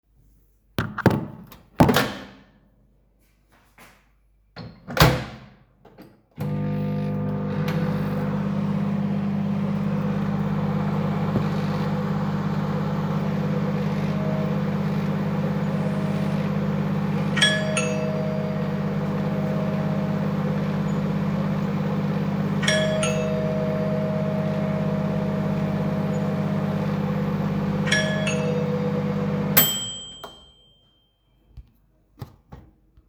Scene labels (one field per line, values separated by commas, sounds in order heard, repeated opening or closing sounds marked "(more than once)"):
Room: hallway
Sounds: microwave, bell ringing